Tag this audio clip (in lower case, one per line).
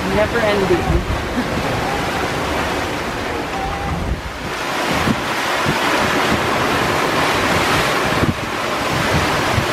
ocean
speech
water vehicle
vehicle
sailing ship